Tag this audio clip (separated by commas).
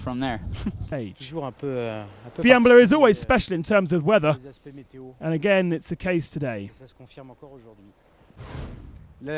Speech